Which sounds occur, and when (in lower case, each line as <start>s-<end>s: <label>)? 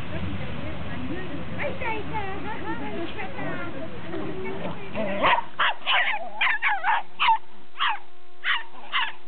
0.0s-9.2s: background noise
0.1s-0.7s: female speech
0.1s-4.9s: conversation
0.9s-1.4s: female speech
1.5s-3.7s: kid speaking
3.4s-4.1s: man speaking
4.1s-4.3s: generic impact sounds
4.4s-4.9s: kid speaking
4.5s-4.7s: generic impact sounds
4.9s-5.4s: yip
5.6s-5.7s: yip
5.8s-7.0s: yip
7.2s-7.4s: yip
7.7s-8.0s: yip
8.4s-9.1s: yip